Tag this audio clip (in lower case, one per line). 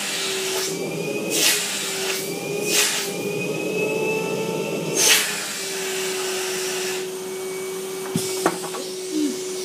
vacuum cleaner